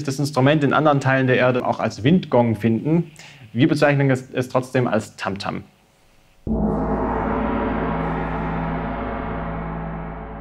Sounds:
playing gong

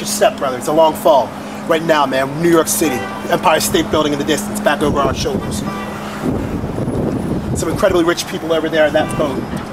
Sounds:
vehicle, boat, speech

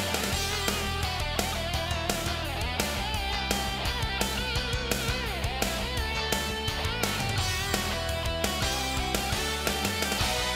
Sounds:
music, exciting music

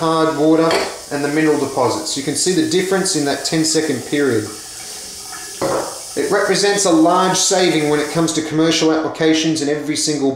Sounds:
water, faucet, sink (filling or washing)

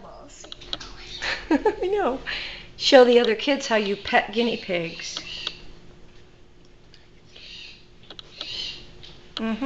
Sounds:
speech

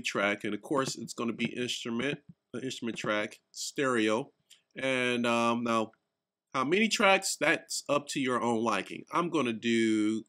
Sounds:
speech

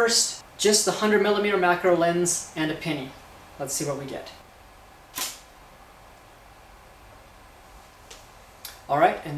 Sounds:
camera

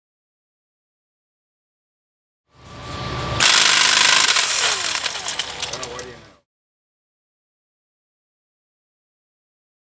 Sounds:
speech

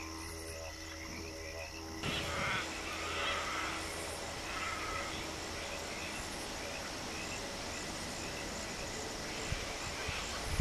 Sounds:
animal, outside, rural or natural

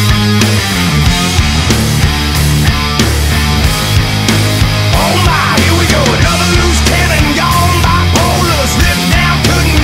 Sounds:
music

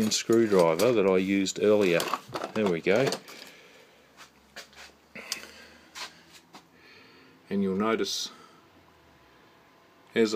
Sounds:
inside a small room, speech

